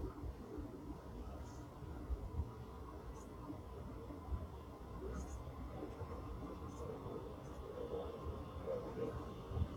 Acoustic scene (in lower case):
subway train